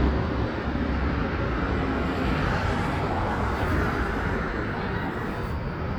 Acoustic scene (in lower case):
street